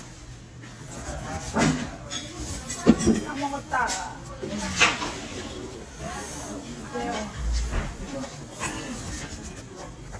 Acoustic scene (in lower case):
restaurant